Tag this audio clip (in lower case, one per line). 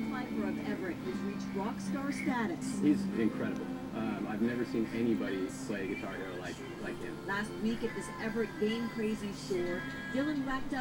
electric guitar
guitar
music
musical instrument
speech